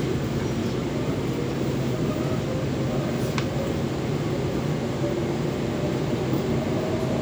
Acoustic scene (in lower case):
subway train